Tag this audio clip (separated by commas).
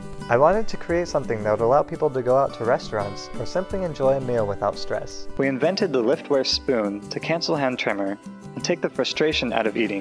Speech, Music